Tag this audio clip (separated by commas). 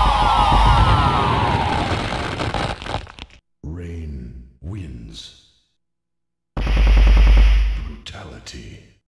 Speech